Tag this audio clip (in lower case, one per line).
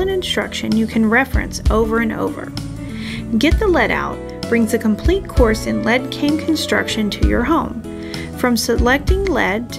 music
speech